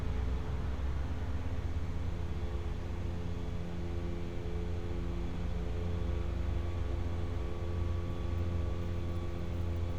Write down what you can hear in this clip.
engine of unclear size